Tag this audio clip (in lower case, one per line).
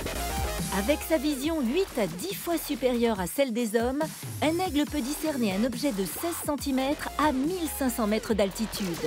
speech
music